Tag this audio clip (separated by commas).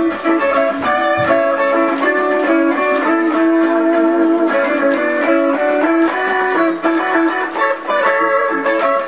Music, Musical instrument, Plucked string instrument, Guitar